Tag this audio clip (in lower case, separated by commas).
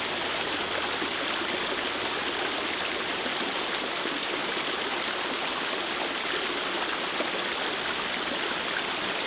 stream burbling, stream